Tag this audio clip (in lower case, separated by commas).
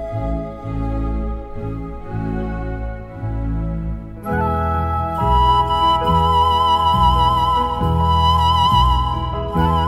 music, flute, organ